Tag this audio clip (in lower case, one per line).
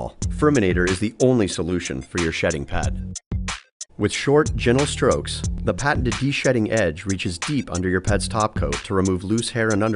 speech
music